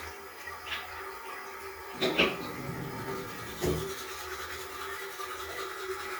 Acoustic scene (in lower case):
restroom